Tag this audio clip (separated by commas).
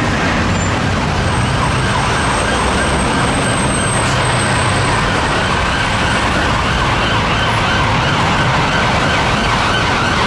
ambulance siren